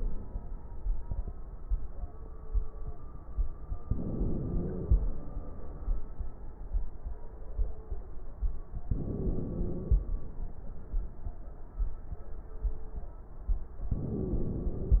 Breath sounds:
Inhalation: 3.87-5.13 s, 8.88-10.14 s, 13.95-15.00 s
Wheeze: 4.07-4.88 s, 9.10-9.91 s, 13.95-15.00 s

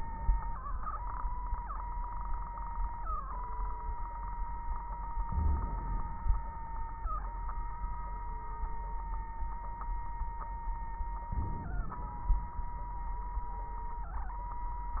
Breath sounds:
Inhalation: 5.30-6.28 s, 11.32-12.59 s
Crackles: 5.30-6.28 s, 11.32-12.59 s

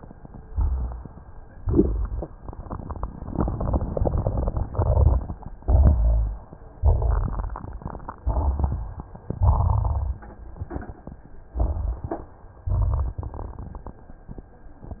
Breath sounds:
Inhalation: 0.44-1.24 s, 5.77-6.43 s, 8.14-9.09 s, 11.57-12.35 s
Exhalation: 1.50-2.30 s, 4.67-5.41 s, 5.79-6.41 s, 6.72-7.67 s, 9.34-10.25 s, 12.64-13.57 s
Wheeze: 12.64-13.57 s
Rhonchi: 0.44-1.24 s
Crackles: 1.50-2.30 s, 4.75-5.41 s, 5.77-6.43 s, 6.76-7.67 s, 8.14-9.05 s, 9.34-10.25 s, 11.57-12.35 s, 12.64-13.57 s

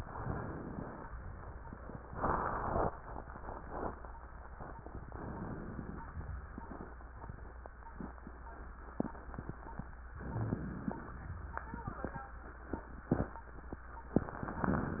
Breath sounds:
Inhalation: 5.13-6.10 s, 10.18-11.18 s

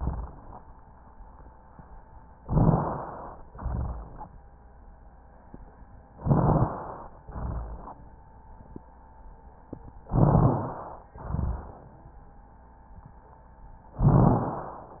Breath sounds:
Inhalation: 2.45-3.42 s, 6.19-7.19 s, 10.06-11.06 s, 14.04-15.00 s
Exhalation: 3.53-4.29 s, 7.27-8.12 s, 11.16-12.01 s
Rhonchi: 2.45-3.42 s, 3.53-4.29 s, 6.19-6.95 s, 7.27-8.12 s, 10.06-11.06 s, 11.16-12.01 s, 14.04-15.00 s

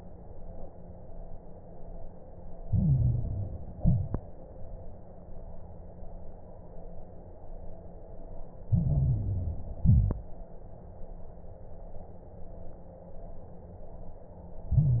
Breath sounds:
Inhalation: 2.60-3.74 s, 8.68-9.82 s, 14.69-15.00 s
Exhalation: 3.76-4.17 s, 9.82-10.23 s
Crackles: 2.60-3.74 s, 3.76-4.17 s, 8.68-9.82 s, 9.82-10.23 s, 14.69-15.00 s

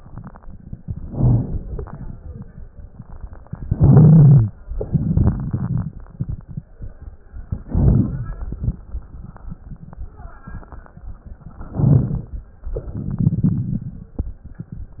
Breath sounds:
Inhalation: 0.82-1.86 s, 3.53-4.57 s, 7.67-8.54 s, 11.67-12.54 s
Exhalation: 4.86-5.96 s, 13.00-14.19 s
Crackles: 0.82-1.86 s, 3.53-4.57 s, 4.86-5.96 s, 7.67-8.54 s, 11.67-12.54 s, 13.00-14.19 s

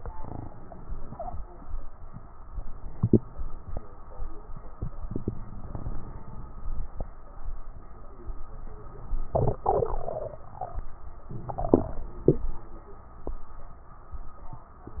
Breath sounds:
Inhalation: 5.31-6.81 s, 11.32-12.49 s
Crackles: 5.31-6.81 s

